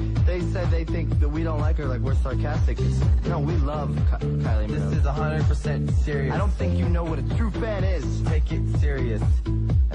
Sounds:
Music, Speech

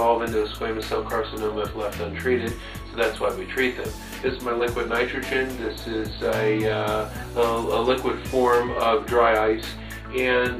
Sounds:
Speech, Music

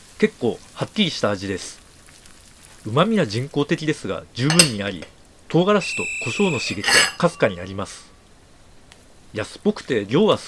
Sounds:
Speech

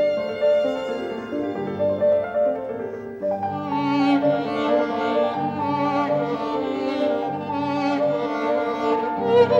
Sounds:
Musical instrument, Bowed string instrument, Violin, Music, Classical music

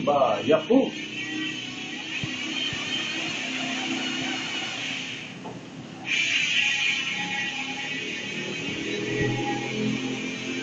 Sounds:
Speech

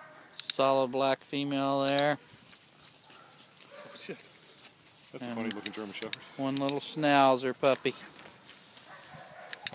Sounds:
Domestic animals, Animal, Dog, Speech

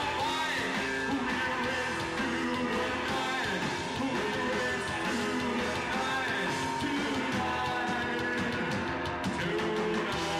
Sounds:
Roll, Rock and roll, Rock music, Music

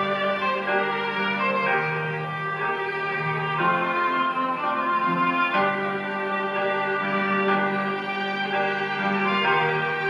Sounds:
Music, Television

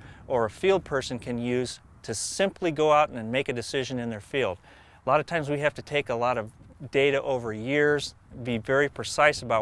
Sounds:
Speech

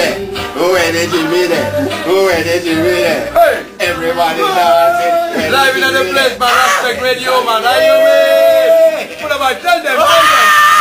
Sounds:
Music, Speech

